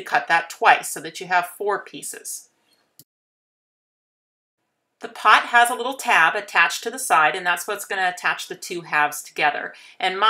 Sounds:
Speech

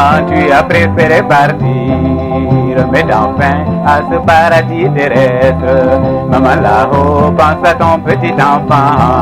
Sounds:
Music

